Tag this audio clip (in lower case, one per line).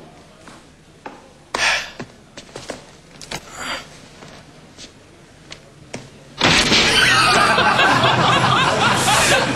door